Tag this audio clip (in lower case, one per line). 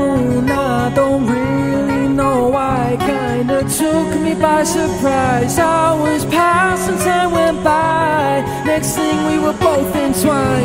music